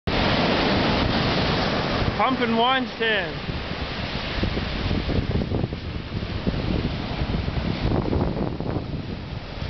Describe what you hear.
A windy day by an ocean while the waves hit the beach a man yells a phrase